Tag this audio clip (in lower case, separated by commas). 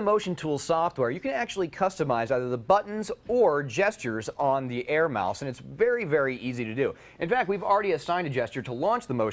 speech